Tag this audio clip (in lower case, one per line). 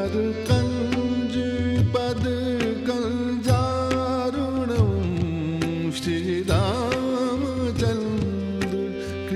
carnatic music